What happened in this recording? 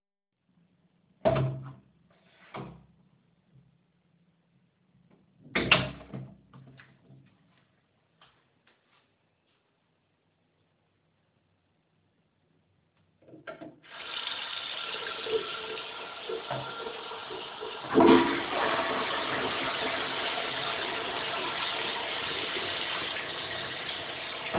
I open the bathroom door then close it. After a few seconds I turn on the water faucet and flush the toilet.